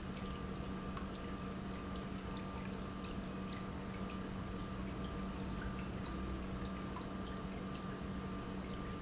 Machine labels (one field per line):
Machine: pump